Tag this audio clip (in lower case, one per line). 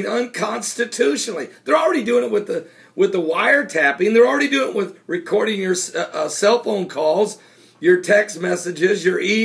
speech